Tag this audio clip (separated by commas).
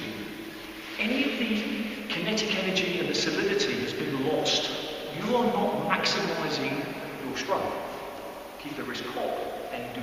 playing squash